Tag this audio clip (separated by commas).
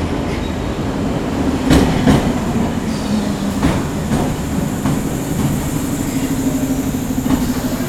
underground, Rail transport, Vehicle